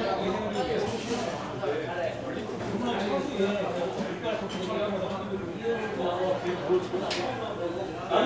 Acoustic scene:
crowded indoor space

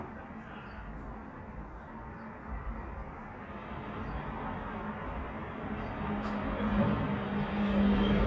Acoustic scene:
residential area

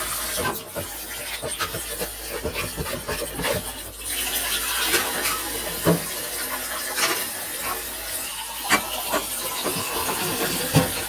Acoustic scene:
kitchen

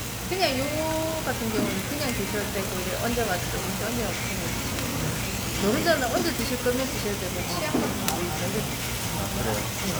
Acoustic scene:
restaurant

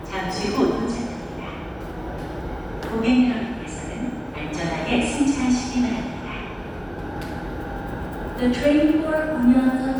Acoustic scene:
subway station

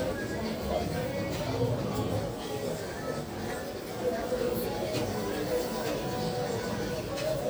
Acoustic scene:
crowded indoor space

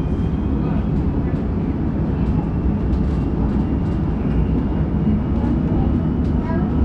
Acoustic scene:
subway train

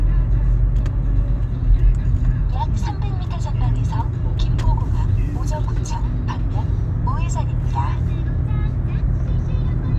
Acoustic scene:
car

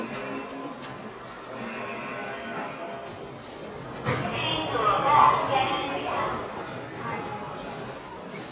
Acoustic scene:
subway station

